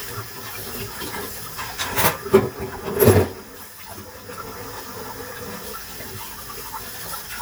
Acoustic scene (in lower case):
kitchen